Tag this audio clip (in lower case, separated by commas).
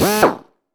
tools, drill, power tool